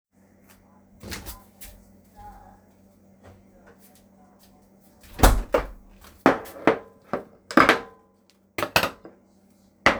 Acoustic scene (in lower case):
kitchen